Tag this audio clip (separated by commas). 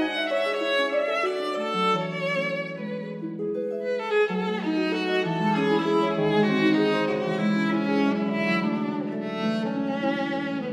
Violin, Music, Cello